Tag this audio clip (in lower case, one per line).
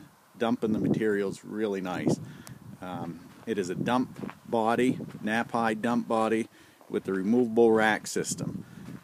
speech